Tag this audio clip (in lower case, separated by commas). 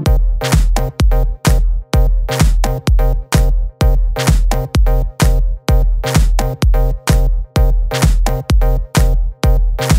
music